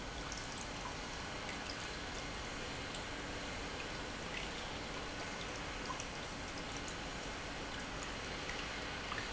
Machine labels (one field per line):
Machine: pump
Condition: normal